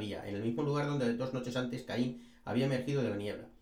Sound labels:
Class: speech